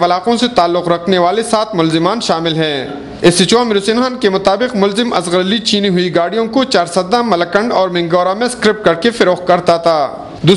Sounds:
speech

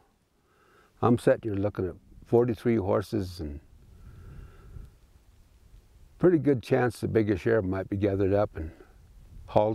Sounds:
speech

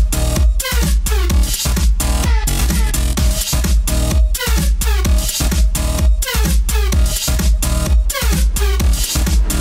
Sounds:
music

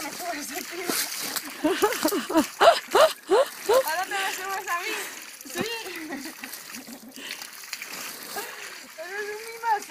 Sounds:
speech

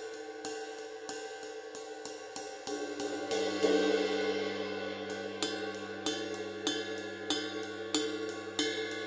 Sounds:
playing cymbal

